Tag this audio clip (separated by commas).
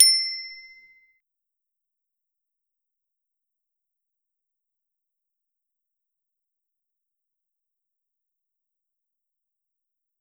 Bicycle, Vehicle, Bicycle bell, Alarm, Bell